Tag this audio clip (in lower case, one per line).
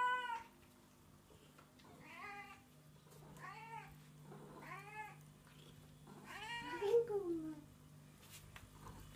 speech